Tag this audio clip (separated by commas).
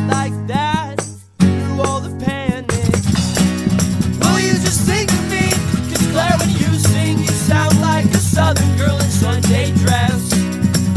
Orchestra, Music